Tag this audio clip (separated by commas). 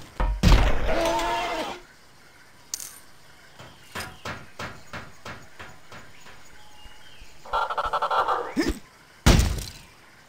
outside, rural or natural